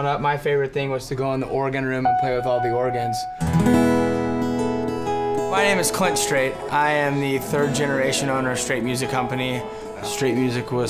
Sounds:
speech
music

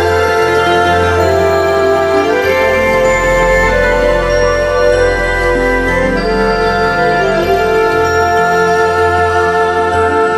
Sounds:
music
wedding music

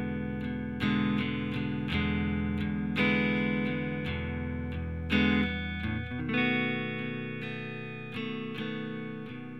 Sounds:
strum
musical instrument
acoustic guitar
guitar
plucked string instrument
music

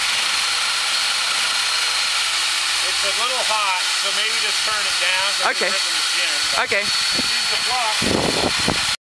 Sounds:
speech

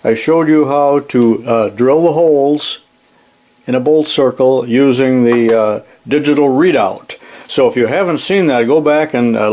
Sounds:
speech

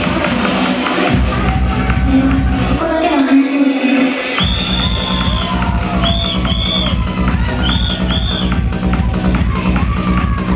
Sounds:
music
speech

